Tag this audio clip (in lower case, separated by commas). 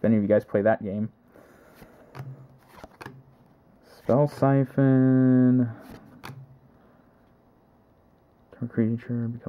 inside a small room, speech